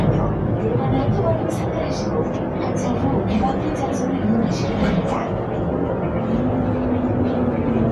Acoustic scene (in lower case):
bus